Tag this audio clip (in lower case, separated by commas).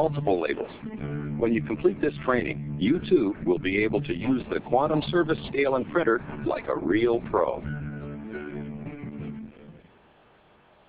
music, speech